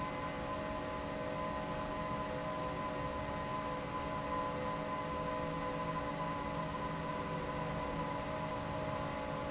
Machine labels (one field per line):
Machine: fan